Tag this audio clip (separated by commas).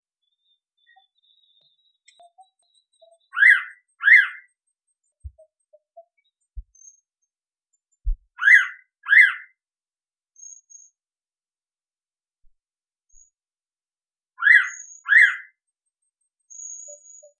Wild animals, Animal, Bird, bird call